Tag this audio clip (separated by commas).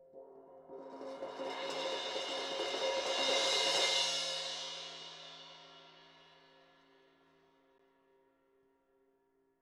Percussion, Cymbal, Crash cymbal, Music, Musical instrument